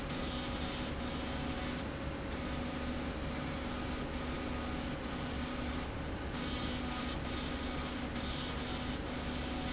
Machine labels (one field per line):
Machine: slide rail